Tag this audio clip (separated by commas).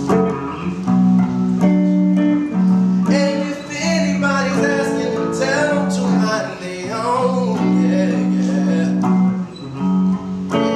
Music, inside a small room